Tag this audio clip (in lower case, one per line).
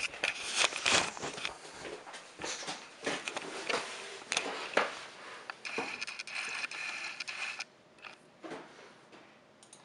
inside a large room or hall